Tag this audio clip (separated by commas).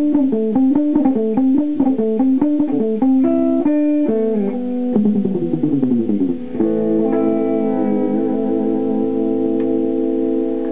Strum, Guitar, Electric guitar, Acoustic guitar, playing bass guitar, Music, Plucked string instrument, Bass guitar, Musical instrument